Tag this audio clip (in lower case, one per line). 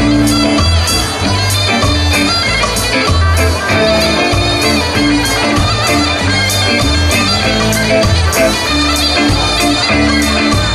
music
folk music